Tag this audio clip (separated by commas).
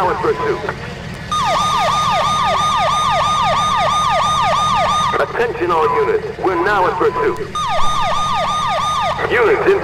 Emergency vehicle, Ambulance (siren), Siren